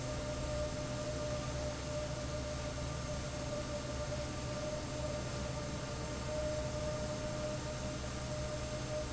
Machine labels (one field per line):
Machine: fan